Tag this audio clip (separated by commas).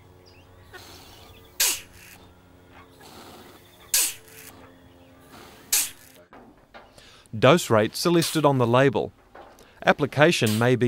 Speech, Animal